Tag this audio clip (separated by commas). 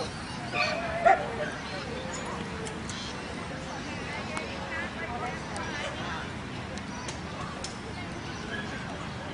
Speech, pets, Animal